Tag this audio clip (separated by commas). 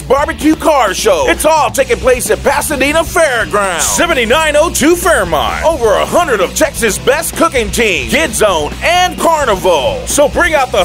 Music, Rock and roll, Speech